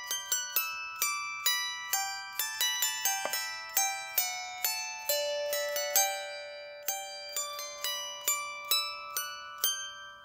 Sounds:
playing zither

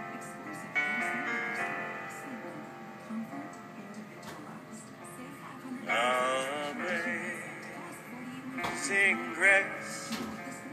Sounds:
Music, Speech, Male singing

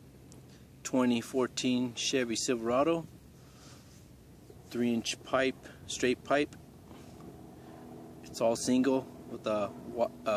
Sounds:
Speech

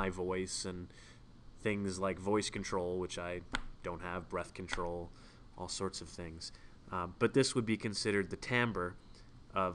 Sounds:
Speech

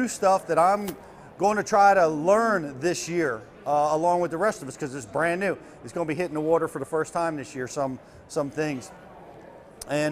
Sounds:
Speech

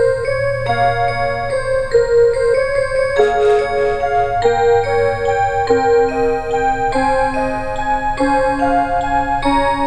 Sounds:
Tick-tock, Music

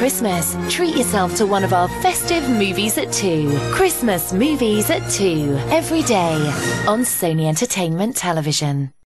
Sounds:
Music, Speech

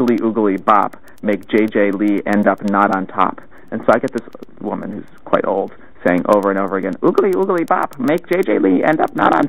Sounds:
Speech

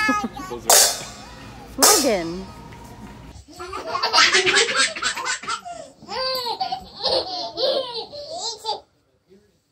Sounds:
baby laughter

